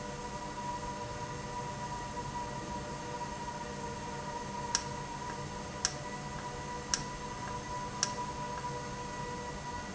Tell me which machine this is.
valve